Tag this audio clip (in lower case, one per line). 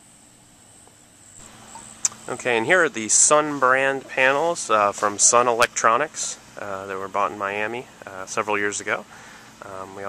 speech